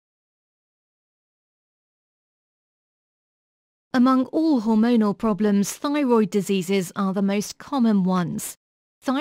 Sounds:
Speech, Silence

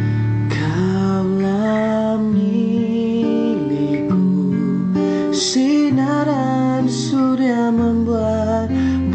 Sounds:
Music

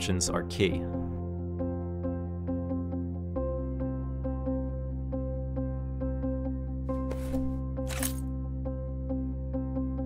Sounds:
Music, Speech

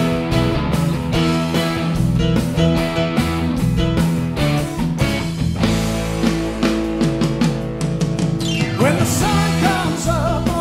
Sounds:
Music

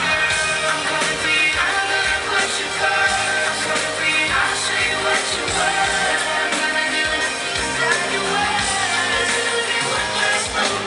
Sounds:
Male singing, Music

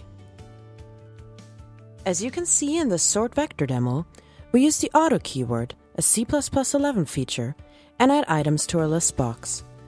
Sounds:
Music, Speech

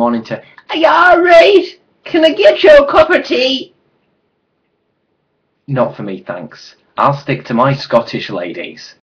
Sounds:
Speech

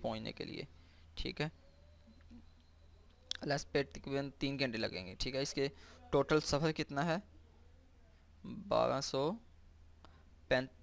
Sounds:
Speech

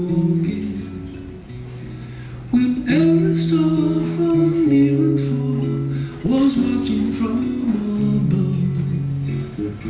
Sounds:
Music

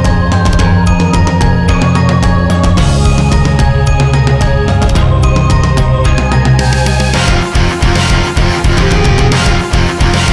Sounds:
Music

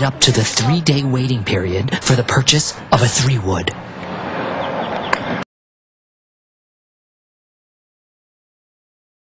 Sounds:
Speech

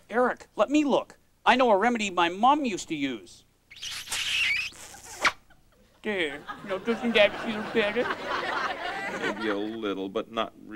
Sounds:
Speech

